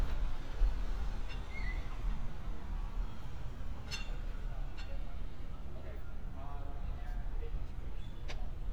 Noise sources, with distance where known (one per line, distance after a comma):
non-machinery impact
person or small group talking, near